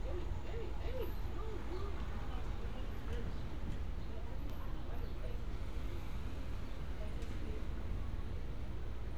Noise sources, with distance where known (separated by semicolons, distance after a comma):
person or small group talking, far